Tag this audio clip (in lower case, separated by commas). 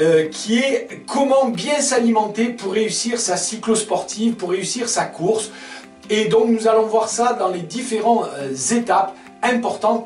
speech, music